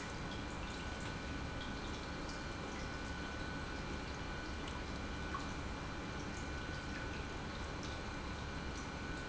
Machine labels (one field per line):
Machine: pump